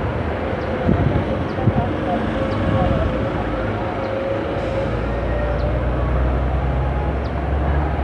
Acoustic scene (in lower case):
street